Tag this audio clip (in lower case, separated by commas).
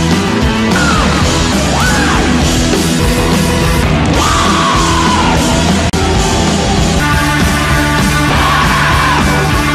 people screaming